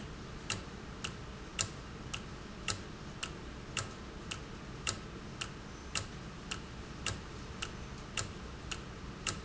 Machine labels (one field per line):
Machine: valve